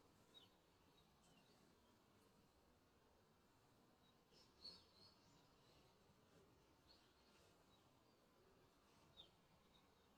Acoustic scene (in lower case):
park